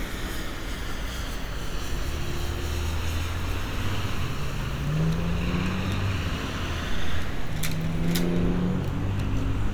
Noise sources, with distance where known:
medium-sounding engine
large-sounding engine, near

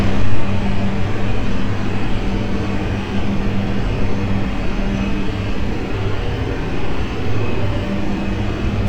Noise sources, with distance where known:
engine of unclear size

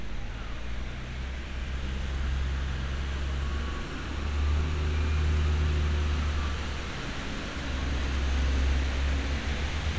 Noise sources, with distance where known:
large-sounding engine, near

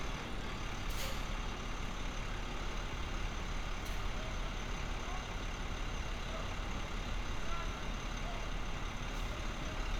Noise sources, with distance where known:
engine of unclear size

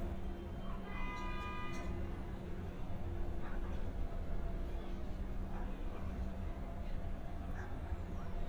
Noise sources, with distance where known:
car horn, far

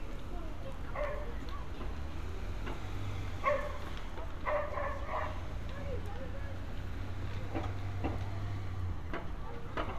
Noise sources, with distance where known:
dog barking or whining

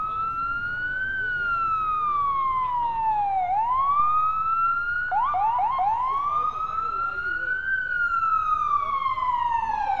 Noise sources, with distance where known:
siren, near

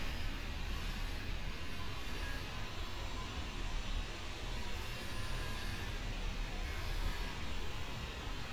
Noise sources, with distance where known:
unidentified impact machinery, near

